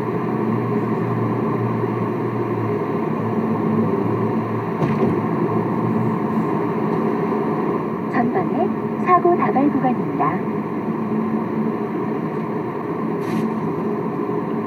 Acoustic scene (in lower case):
car